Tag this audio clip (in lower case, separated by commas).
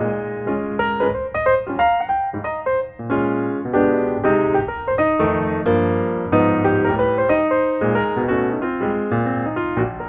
music